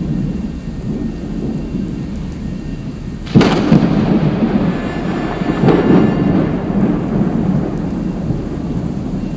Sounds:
Thunder, Thunderstorm, Raindrop, Rain

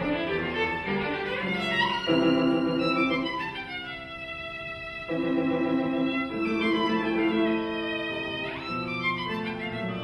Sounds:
Music, Musical instrument, fiddle

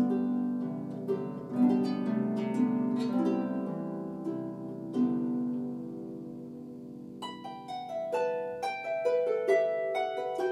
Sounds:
Harp, Pizzicato, playing harp

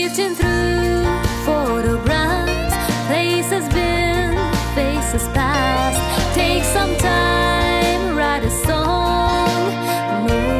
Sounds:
Music

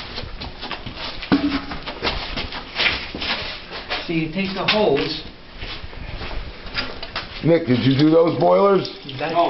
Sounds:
Speech, Water tap

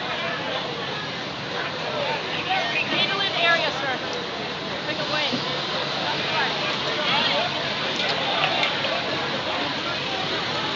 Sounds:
Vehicle, Speech

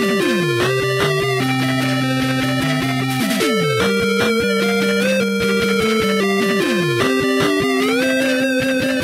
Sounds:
Music, Video game music

